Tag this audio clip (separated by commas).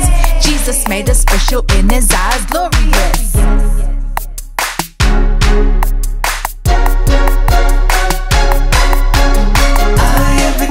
Music